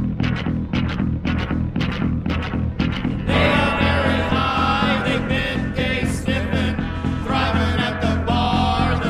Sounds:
music

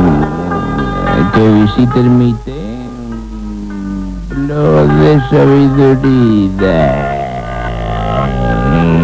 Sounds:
speech, music

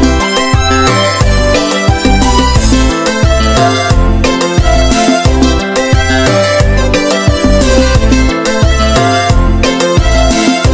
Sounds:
music

